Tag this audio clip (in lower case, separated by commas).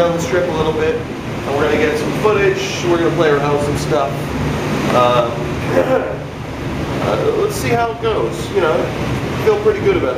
speech